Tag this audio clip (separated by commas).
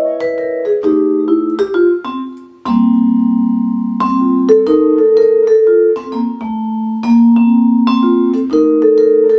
Musical instrument, Music, Vibraphone